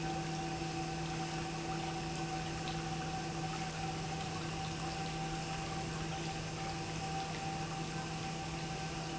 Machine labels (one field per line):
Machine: pump